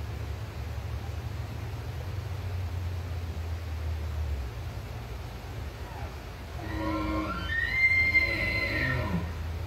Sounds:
elk bugling

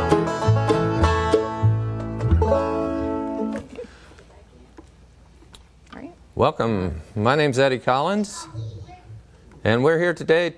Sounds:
Music, Speech, Bluegrass, Country

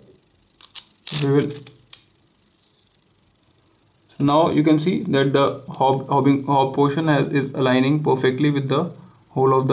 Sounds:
Speech

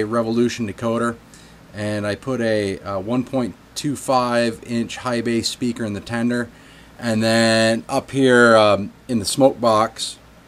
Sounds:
Speech

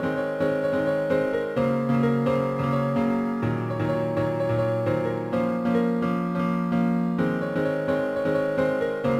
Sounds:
Music

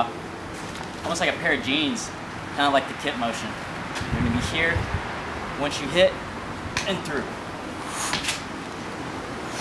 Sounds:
Speech, Car

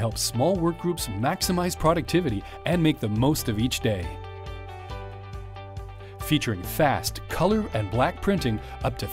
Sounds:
Speech, Music

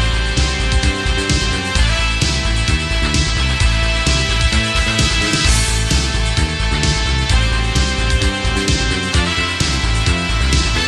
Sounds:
Music, House music

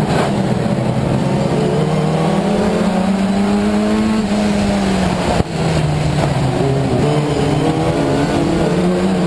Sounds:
Motor vehicle (road), Car, Vehicle

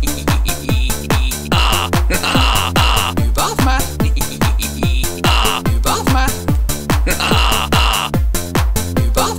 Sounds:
Techno, Music

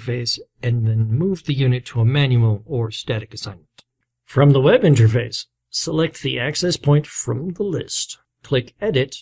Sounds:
Speech

